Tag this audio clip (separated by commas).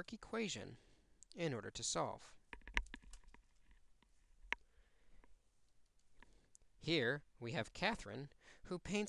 inside a small room, Speech